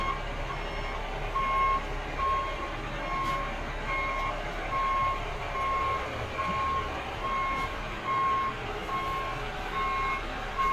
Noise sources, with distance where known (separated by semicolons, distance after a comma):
engine of unclear size, near; reverse beeper, near